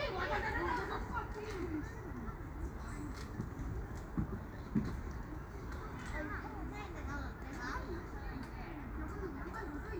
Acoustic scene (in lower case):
park